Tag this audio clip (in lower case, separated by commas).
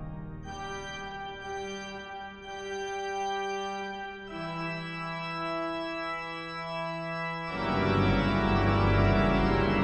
music